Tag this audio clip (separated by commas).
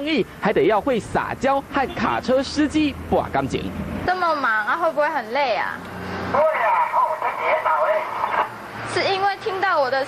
police radio chatter